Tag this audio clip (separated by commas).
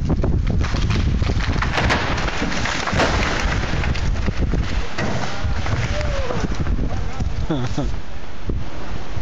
Speech